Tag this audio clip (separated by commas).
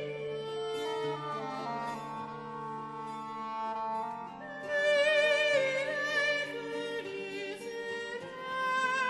Music